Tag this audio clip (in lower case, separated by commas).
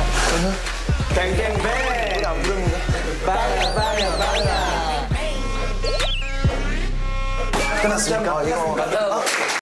speech, music